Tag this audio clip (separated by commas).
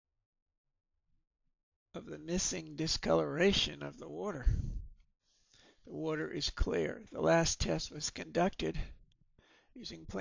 Speech